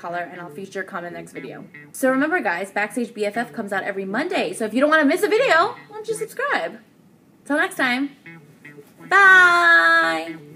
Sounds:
Music, Speech, inside a small room

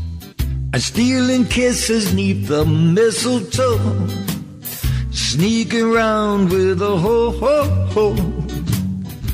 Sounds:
Music, Christian music, Christmas music

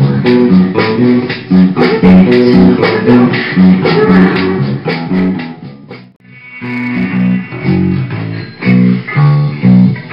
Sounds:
playing bass guitar

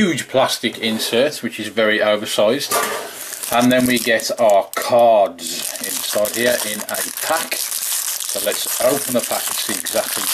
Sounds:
Speech

